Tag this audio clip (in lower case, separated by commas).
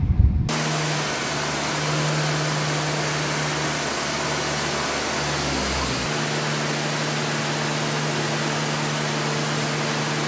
fixed-wing aircraft, vehicle